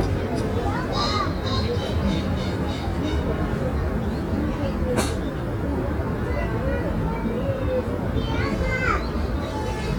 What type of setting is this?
residential area